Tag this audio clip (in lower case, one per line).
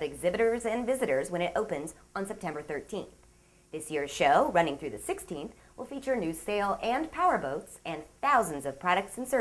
speech